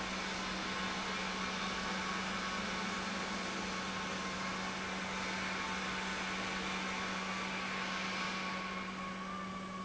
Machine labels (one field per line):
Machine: pump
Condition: normal